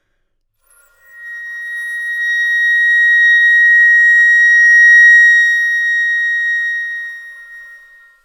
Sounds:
musical instrument, woodwind instrument, music

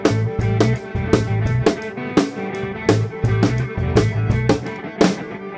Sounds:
music, drum, guitar, plucked string instrument, musical instrument, percussion

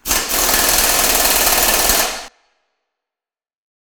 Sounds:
mechanisms, tools

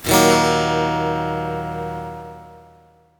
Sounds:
plucked string instrument, strum, musical instrument, music, guitar, acoustic guitar

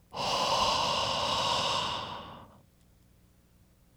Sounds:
respiratory sounds, breathing

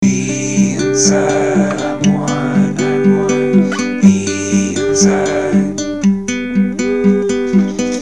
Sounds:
acoustic guitar, music, guitar, plucked string instrument, human voice, musical instrument

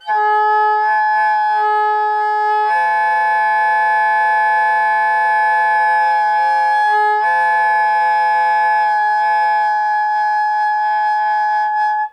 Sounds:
music, wind instrument, musical instrument

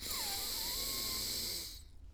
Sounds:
breathing, respiratory sounds

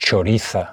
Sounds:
speech, male speech, human voice

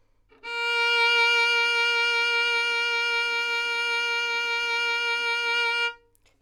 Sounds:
music, bowed string instrument, musical instrument

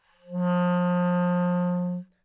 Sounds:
musical instrument, woodwind instrument, music

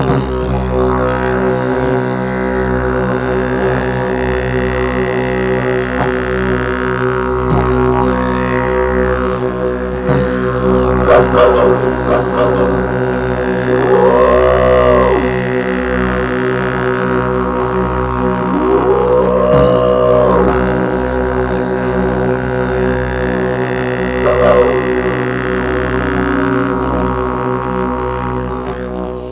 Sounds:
music, musical instrument

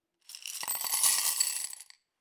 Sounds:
coin (dropping), glass, domestic sounds

